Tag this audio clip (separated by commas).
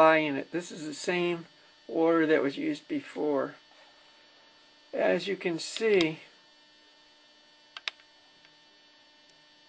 Speech